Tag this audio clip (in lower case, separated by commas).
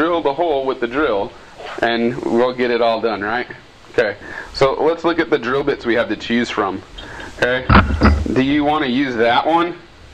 speech